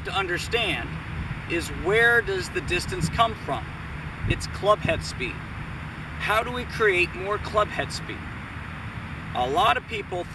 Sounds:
Speech

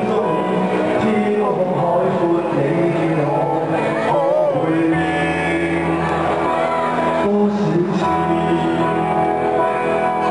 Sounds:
Music, Speech

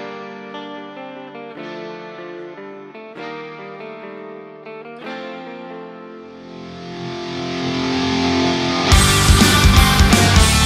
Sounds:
Heavy metal

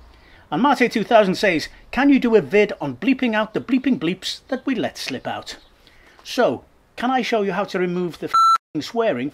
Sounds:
Speech, bleep

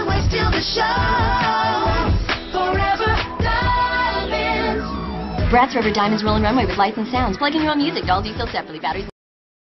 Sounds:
Speech, Music

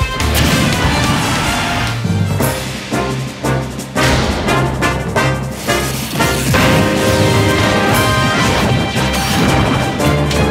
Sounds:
Music

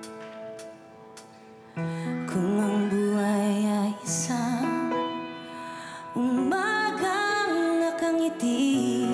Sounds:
Song, Singing, Music, Music of Asia, Pop music

